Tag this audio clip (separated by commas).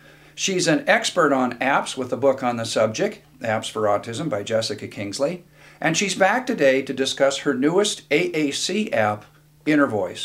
Speech, Narration, man speaking